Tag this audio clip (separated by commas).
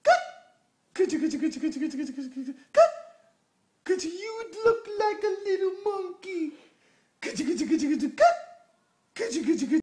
Speech